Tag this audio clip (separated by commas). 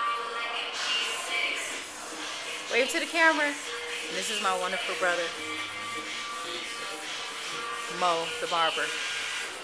Speech, Music